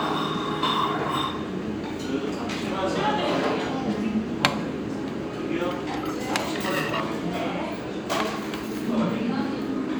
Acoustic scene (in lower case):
restaurant